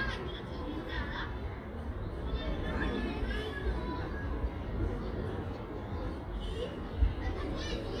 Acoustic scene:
residential area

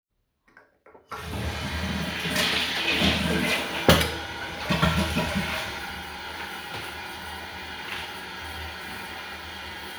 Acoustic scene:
restroom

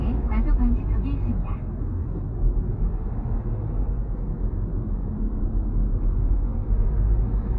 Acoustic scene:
car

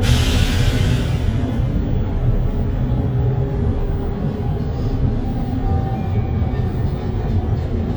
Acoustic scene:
bus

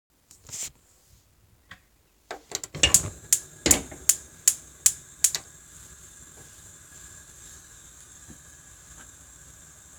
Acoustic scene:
kitchen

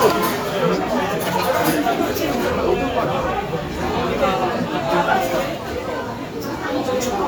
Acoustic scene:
cafe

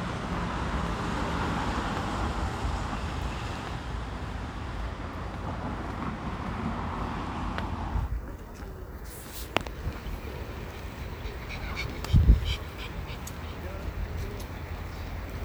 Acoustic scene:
residential area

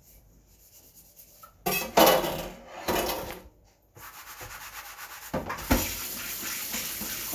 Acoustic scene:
kitchen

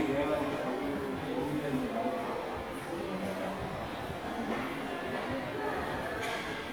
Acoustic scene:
subway station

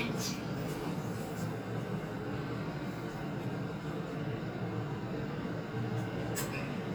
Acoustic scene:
elevator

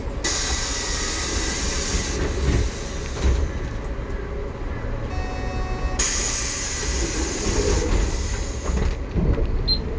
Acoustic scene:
bus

